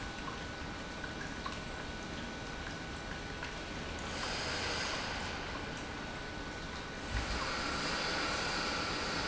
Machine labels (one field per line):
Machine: pump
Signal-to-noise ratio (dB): -6 dB